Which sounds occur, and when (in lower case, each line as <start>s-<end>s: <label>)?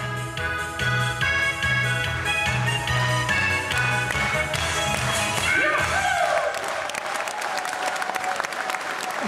0.0s-9.2s: background noise
0.0s-5.8s: music
2.0s-2.2s: clapping
2.4s-2.5s: clapping
2.8s-3.0s: clapping
3.2s-3.4s: clapping
3.6s-3.9s: clapping
4.1s-4.3s: clapping
4.5s-4.8s: clapping
4.9s-5.1s: clapping
5.4s-5.6s: clapping
5.4s-6.5s: human sounds
6.2s-9.2s: clapping